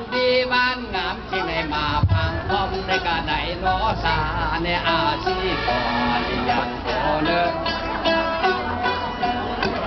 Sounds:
Male singing, Music, Speech

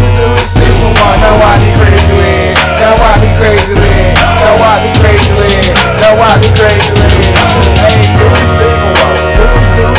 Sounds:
Music

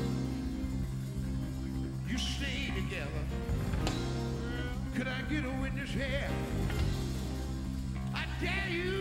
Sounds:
Music

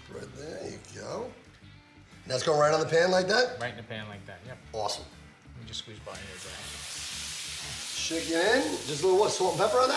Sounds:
Speech, inside a small room

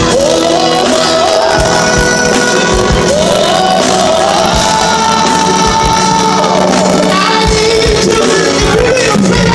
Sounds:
Singing, Music

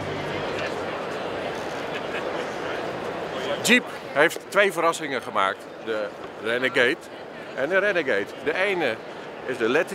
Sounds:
Speech

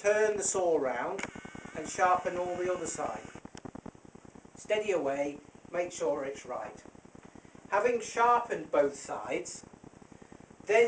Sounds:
Speech

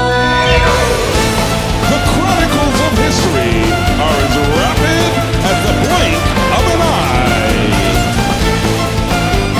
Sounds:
Music

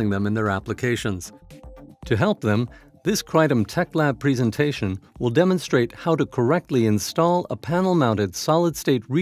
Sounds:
Music, Speech

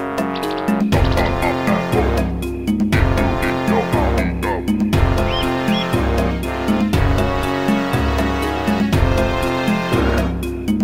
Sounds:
Music

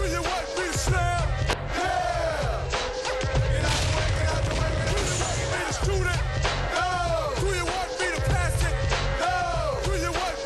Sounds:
Music

